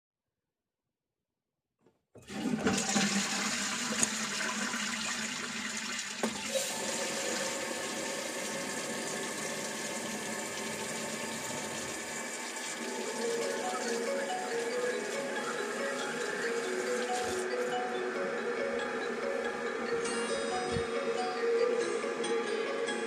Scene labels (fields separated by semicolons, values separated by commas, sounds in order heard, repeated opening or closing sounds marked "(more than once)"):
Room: bathroom; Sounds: toilet flushing, running water, phone ringing